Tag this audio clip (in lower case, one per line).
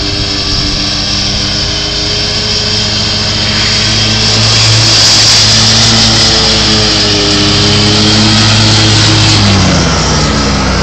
vehicle
lawn mower
lawn mowing